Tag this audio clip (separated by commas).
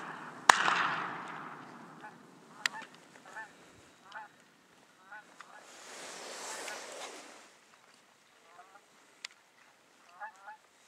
goose honking, Honk